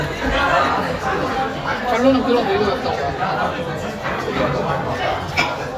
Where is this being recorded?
in a crowded indoor space